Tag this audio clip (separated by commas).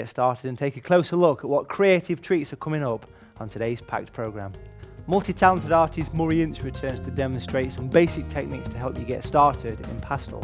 Music, Speech